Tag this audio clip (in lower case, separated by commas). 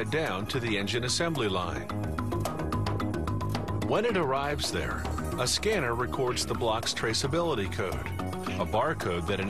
music, speech